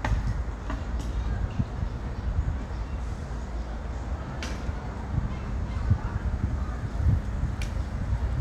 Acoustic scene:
residential area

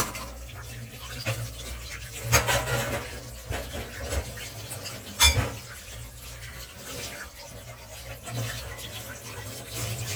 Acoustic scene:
kitchen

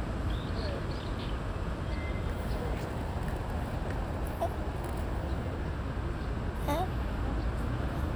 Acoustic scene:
park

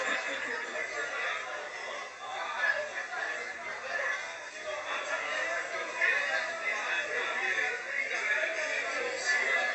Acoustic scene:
crowded indoor space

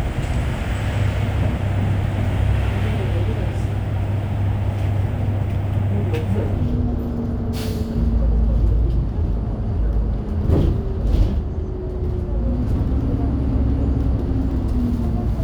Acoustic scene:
bus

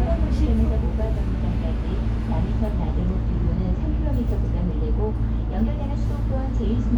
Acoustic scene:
bus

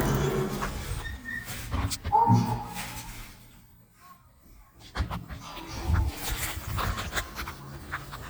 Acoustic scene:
elevator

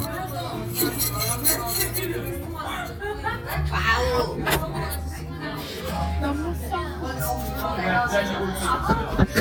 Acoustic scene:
crowded indoor space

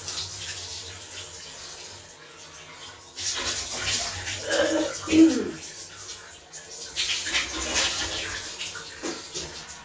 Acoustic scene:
restroom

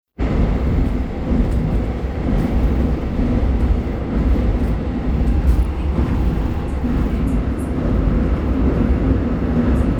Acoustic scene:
subway train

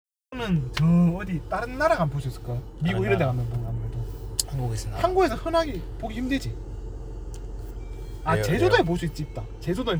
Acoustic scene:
car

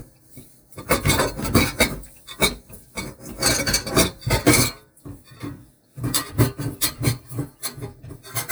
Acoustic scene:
kitchen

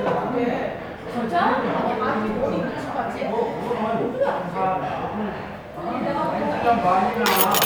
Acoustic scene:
restaurant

